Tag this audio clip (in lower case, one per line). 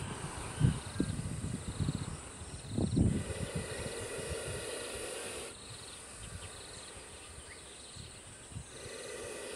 snake hissing